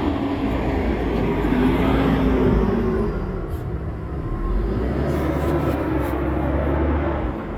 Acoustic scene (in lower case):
street